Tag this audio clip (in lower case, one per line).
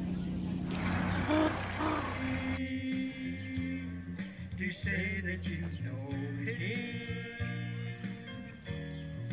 music